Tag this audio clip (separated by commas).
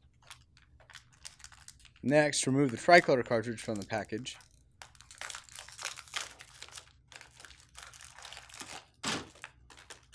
Speech